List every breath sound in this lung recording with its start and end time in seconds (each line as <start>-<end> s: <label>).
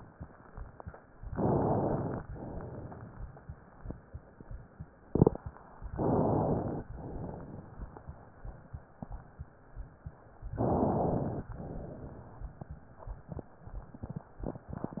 1.25-2.21 s: inhalation
1.25-2.21 s: crackles
2.27-3.37 s: exhalation
5.93-6.87 s: inhalation
6.93-8.33 s: exhalation
10.57-11.51 s: inhalation
11.52-12.65 s: exhalation